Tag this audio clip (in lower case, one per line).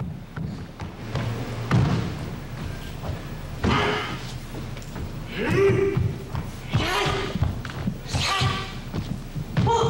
speech